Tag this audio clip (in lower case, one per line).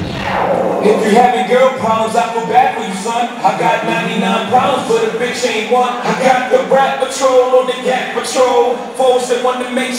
speech